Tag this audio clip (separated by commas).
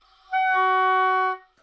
Wind instrument, Music, Musical instrument